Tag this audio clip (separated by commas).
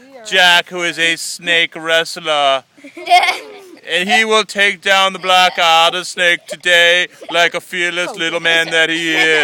outside, rural or natural, Speech